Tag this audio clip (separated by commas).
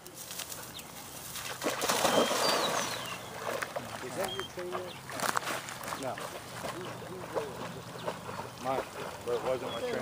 outside, rural or natural, Animal, Speech